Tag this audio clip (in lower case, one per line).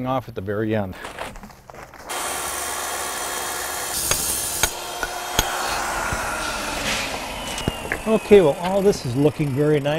speech